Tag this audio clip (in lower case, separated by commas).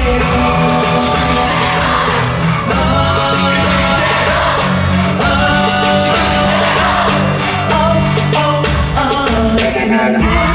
singing